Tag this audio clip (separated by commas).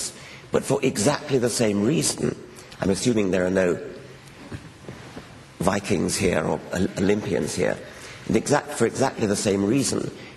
monologue, Speech